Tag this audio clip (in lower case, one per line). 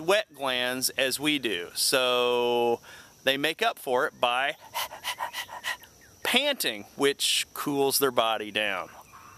speech